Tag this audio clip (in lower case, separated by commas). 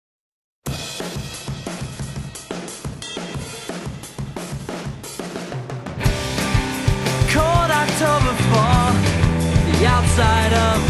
bass drum, drum, percussion, snare drum, rimshot, drum kit